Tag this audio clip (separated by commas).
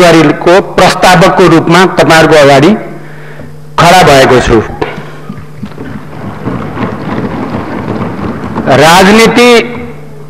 monologue, Speech, Male speech